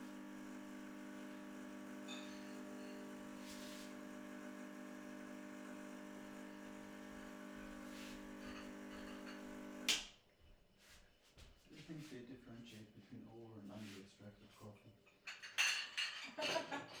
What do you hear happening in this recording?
coffee machine running; dishes noise in the background; turning it off; talking about coffee; more dishes